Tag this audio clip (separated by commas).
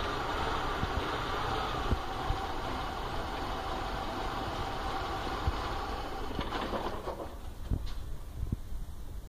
Vehicle